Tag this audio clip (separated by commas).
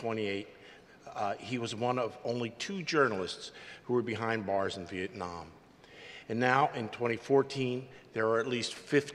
man speaking, Speech, monologue